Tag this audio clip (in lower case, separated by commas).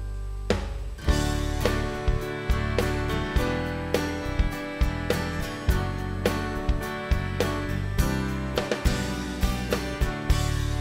music